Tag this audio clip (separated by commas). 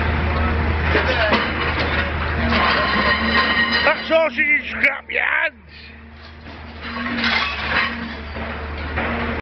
Speech